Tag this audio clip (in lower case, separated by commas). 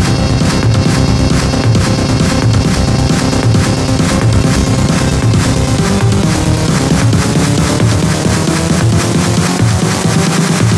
music